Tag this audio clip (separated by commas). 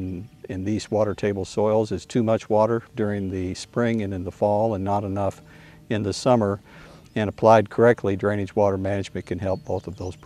Speech